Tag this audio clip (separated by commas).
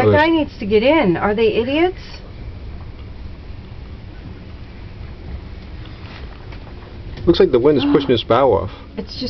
Speech